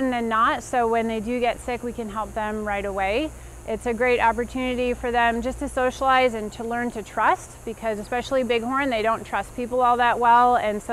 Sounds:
Speech

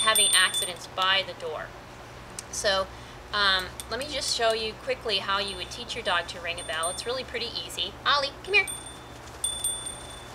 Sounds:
Speech

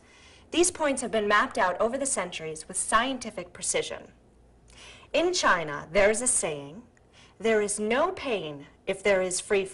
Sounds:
Speech

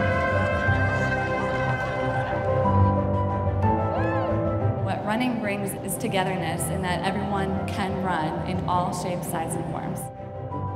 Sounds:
Music, inside a large room or hall, Speech

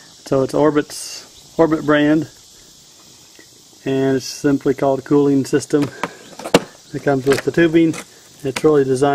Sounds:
outside, rural or natural, Speech

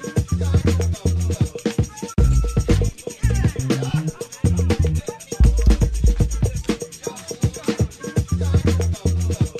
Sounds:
Music

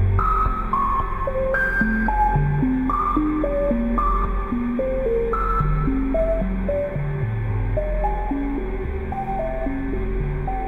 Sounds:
Music

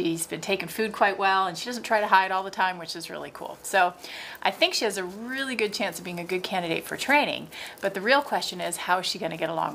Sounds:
Speech

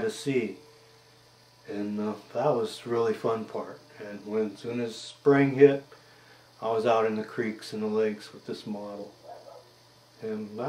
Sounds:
Speech

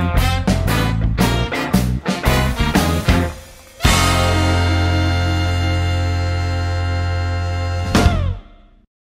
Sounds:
Strum, Music, Guitar, Plucked string instrument, Musical instrument

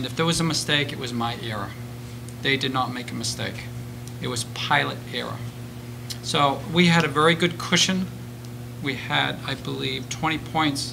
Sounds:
Speech

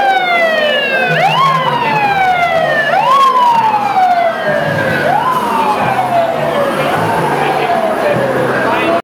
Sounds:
Engine, Speech, Accelerating, Vehicle

